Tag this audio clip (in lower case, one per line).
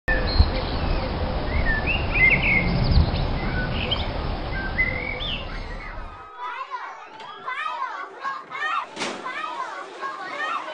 tweet
bird song
bird